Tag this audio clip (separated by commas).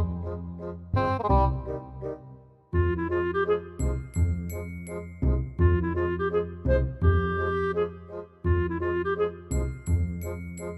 Music